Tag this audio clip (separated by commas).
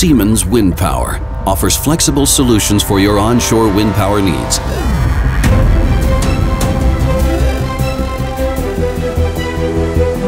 Music, Speech